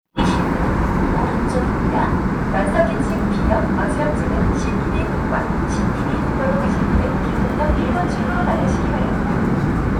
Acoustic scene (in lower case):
subway train